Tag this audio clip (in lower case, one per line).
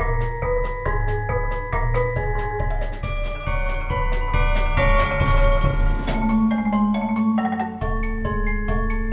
music
percussion